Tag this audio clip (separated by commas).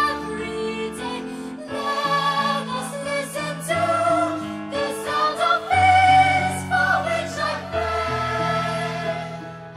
Music, Singing, Choir